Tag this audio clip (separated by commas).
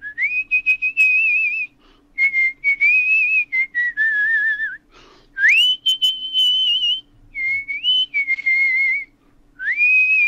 Whistle